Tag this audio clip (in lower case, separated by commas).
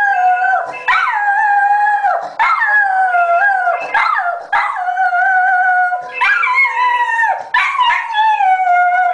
howl, dog, bark, animal